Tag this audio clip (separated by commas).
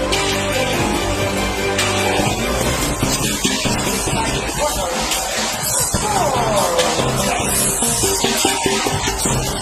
Music, Speech